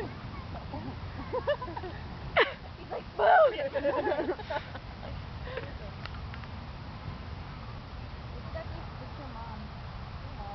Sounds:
Speech

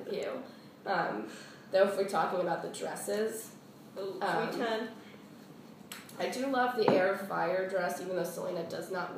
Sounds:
Speech

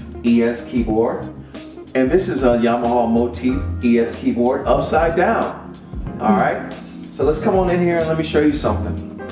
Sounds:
Music, Speech

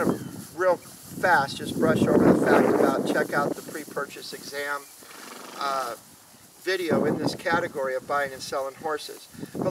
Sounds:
Speech

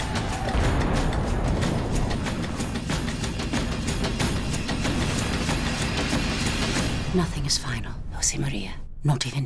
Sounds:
Speech, Music

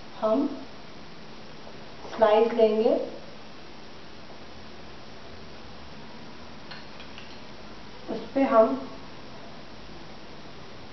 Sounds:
Speech

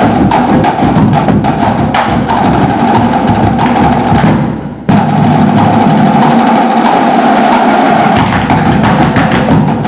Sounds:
Music, Wood block

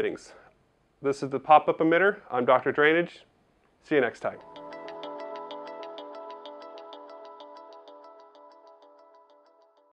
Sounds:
Speech, Music

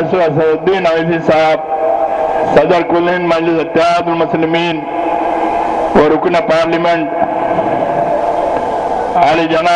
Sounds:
man speaking, Speech

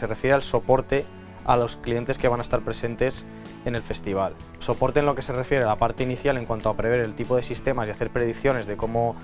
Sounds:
Music, Speech

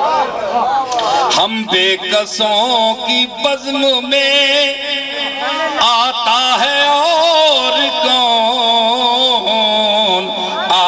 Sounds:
Speech

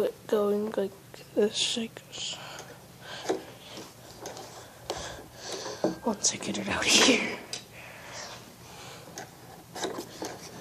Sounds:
Speech, inside a small room

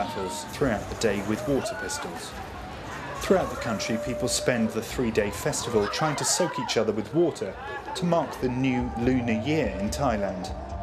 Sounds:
Speech

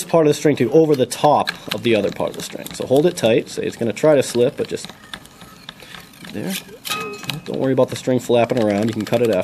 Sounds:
Speech

